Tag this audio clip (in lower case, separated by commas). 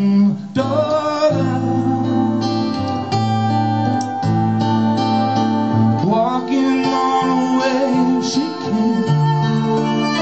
blues, musical instrument, music, fiddle